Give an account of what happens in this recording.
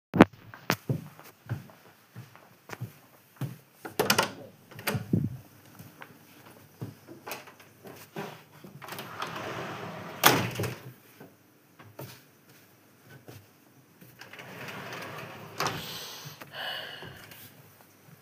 I walk into the bedroom, open the wardrobe drawer and search for something inside. Afterwards I close the drawer and leave the room.